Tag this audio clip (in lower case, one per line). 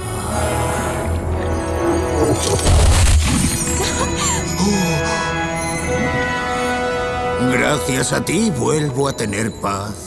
foghorn